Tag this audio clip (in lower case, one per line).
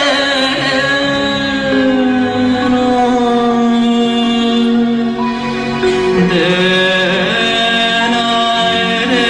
singing
music
inside a large room or hall